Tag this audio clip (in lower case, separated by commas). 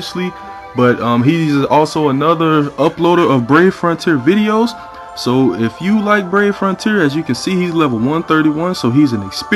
speech, music